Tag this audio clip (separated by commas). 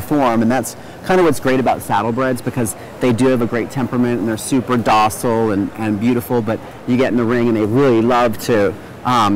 Speech